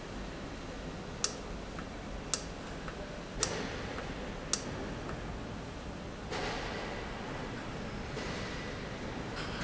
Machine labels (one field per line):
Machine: valve